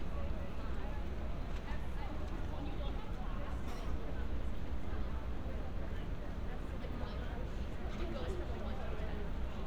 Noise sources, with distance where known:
person or small group talking, far

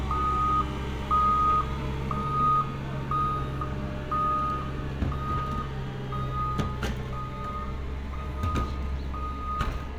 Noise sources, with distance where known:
reverse beeper

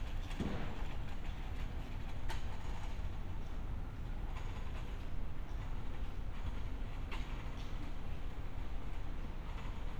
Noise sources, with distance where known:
background noise

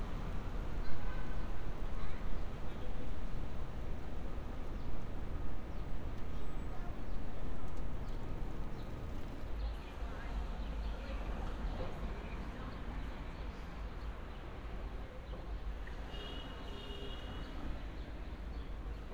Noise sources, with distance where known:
car horn, far
person or small group talking

